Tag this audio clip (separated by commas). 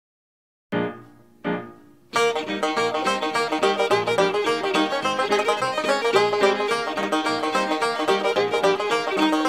Banjo, Music